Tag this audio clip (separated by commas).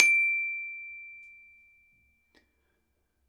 Mallet percussion, Percussion, Glockenspiel, Music, Musical instrument